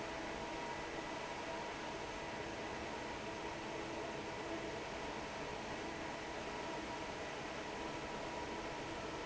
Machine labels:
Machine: fan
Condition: normal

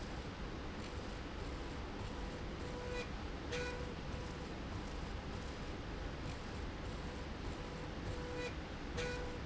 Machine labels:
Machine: slide rail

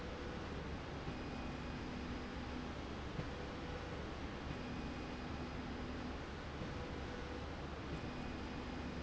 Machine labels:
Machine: slide rail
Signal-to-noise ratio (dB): 0 dB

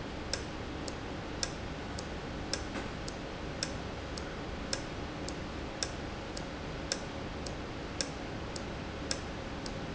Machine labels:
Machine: valve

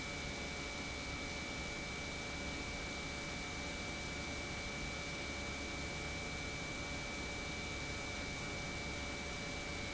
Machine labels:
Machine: pump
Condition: normal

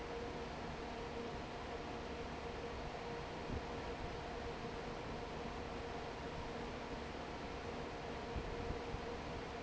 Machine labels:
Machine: fan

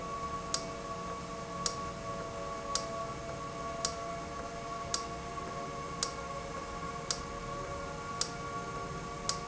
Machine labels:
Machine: valve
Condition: normal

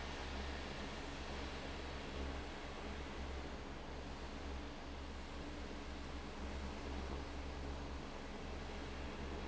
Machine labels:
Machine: fan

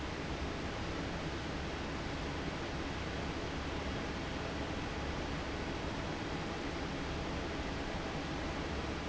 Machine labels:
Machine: fan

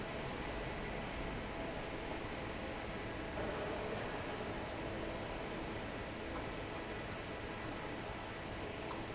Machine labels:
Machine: fan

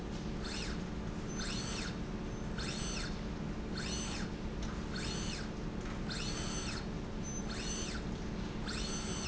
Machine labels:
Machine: slide rail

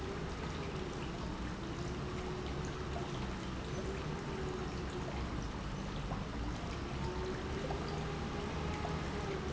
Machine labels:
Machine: pump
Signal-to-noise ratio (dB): -6 dB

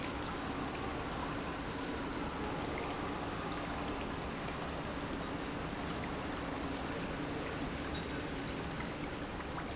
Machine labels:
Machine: pump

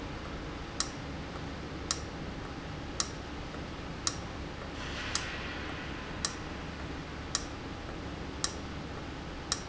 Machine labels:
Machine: valve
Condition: abnormal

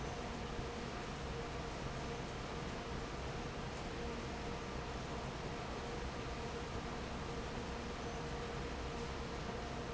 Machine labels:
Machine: fan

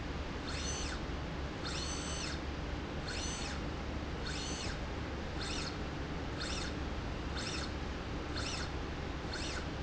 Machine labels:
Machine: slide rail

